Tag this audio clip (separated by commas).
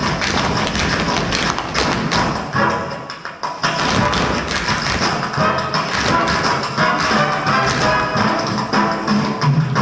tap dancing